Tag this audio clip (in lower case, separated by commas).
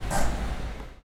car, motor vehicle (road), vehicle